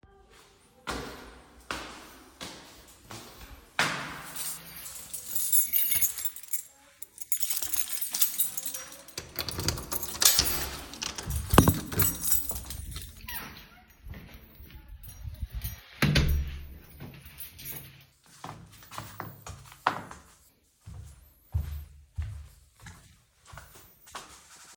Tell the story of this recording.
I walked up the stairs, took out my keys, opened the door, entered the house, closed to door